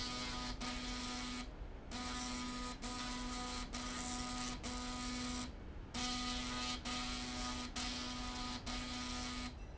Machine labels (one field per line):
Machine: slide rail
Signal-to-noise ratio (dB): 6 dB